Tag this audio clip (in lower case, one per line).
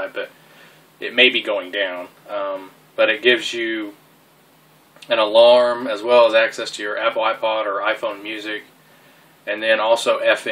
speech